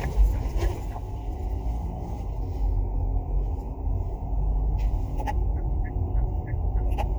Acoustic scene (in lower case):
car